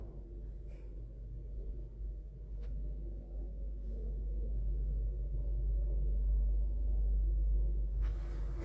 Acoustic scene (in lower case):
elevator